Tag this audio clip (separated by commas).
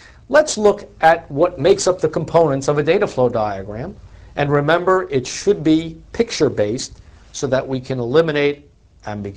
Speech